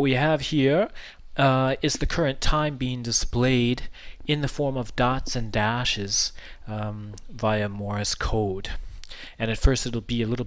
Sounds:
Speech

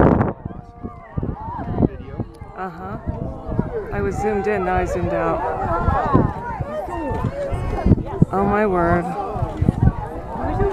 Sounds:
Speech

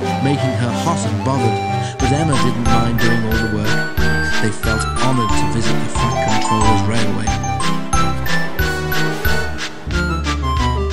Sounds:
Music, Speech

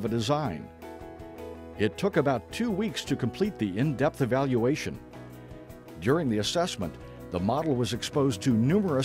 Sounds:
Speech, Music

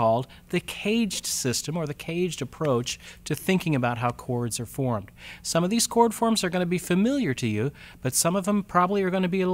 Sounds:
Speech

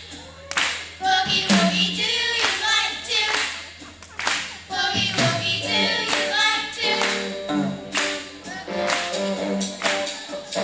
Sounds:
Music, Rhythm and blues

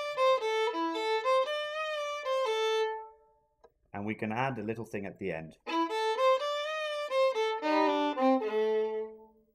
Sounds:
Musical instrument, Music, fiddle, Speech

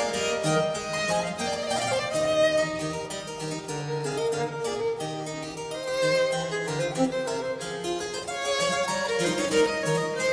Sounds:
Harpsichord, Keyboard (musical)

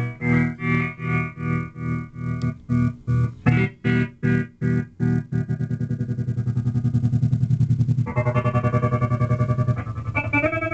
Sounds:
Guitar, Musical instrument, Music, Plucked string instrument, Effects unit

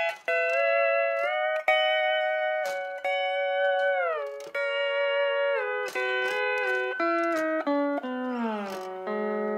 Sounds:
Plucked string instrument, Steel guitar, Guitar, Music, Musical instrument

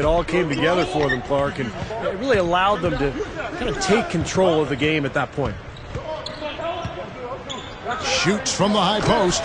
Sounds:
Speech

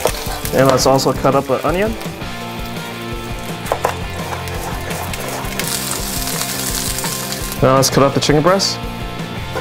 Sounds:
Music, Speech

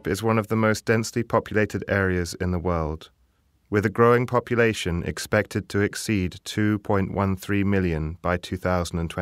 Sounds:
Speech

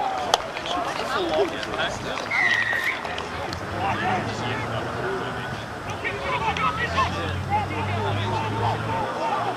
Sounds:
Run, Speech

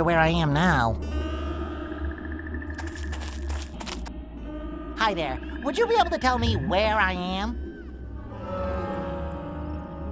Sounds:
Speech

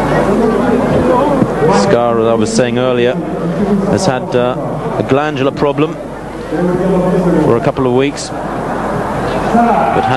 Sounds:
Speech

